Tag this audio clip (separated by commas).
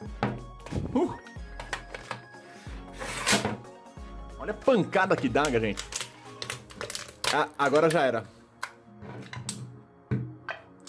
striking pool